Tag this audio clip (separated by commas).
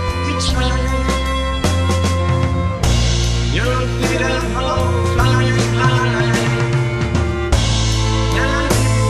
Independent music, Music